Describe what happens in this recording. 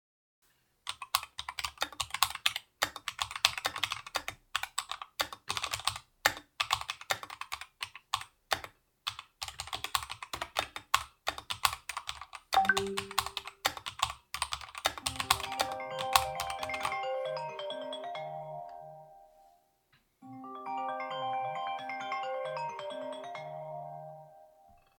I was typing, then I got a notifciation, then I got a call